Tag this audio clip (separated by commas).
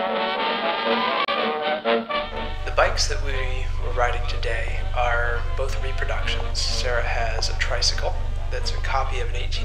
Speech, Music